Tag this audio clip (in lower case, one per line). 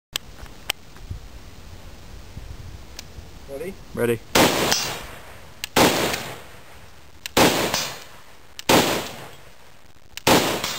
gunshot